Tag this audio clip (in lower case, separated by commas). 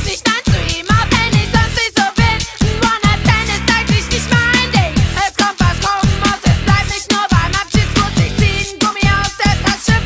music, dance music